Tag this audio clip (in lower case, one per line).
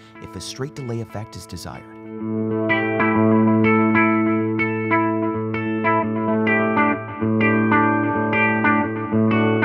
distortion
music
speech